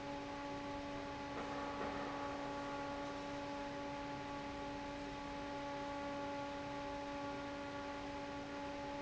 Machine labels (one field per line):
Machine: fan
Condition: normal